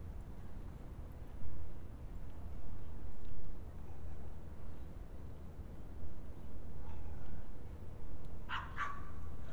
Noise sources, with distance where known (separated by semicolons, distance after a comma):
dog barking or whining, near